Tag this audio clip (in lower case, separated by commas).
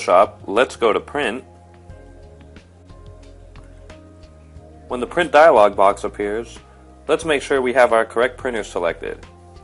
music, speech